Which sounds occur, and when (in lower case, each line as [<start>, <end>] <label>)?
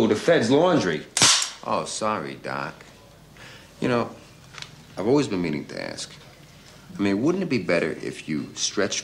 [0.00, 0.99] male speech
[0.00, 9.03] background noise
[0.00, 9.03] conversation
[1.11, 1.49] cap gun
[1.59, 3.12] male speech
[2.70, 2.89] generic impact sounds
[3.30, 3.60] breathing
[3.71, 4.11] male speech
[4.12, 4.32] breathing
[4.48, 4.66] generic impact sounds
[4.90, 6.64] male speech
[6.36, 6.70] generic impact sounds
[6.38, 6.81] breathing
[6.89, 9.03] male speech
[8.28, 8.54] brief tone